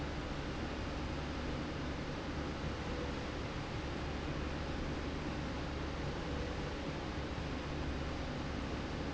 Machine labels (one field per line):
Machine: slide rail